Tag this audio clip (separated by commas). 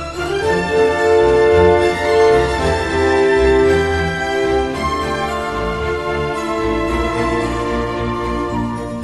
Music